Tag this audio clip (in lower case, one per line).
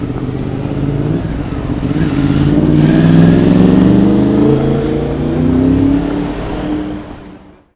car
motor vehicle (road)
vehicle
roadway noise
car passing by
engine